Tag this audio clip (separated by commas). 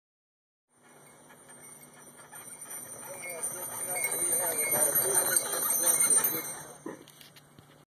Speech, Animal, Horse, Clip-clop